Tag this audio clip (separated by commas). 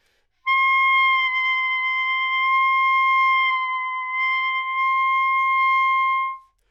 Music, woodwind instrument, Musical instrument